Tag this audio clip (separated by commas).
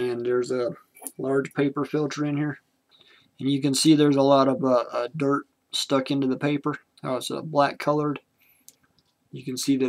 Speech